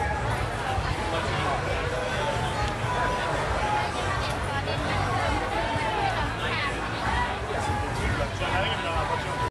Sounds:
speech, music

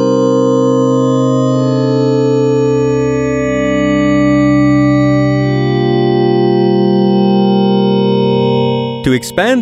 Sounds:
speech, music, synthesizer

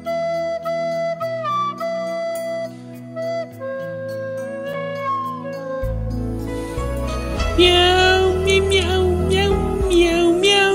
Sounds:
music

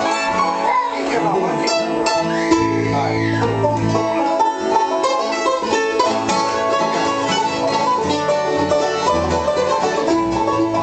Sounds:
playing banjo, bluegrass, banjo

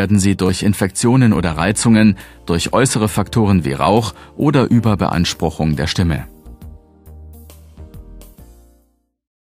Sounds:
music, speech

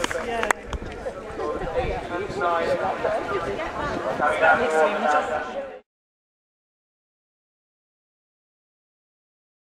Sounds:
speech, clip-clop

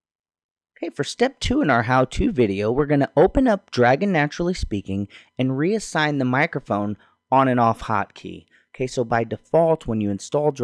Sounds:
speech, narration

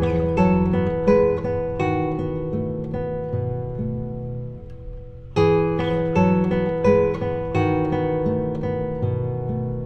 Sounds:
musical instrument, guitar, plucked string instrument, strum, music

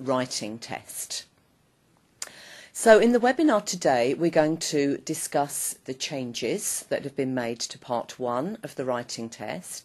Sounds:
speech

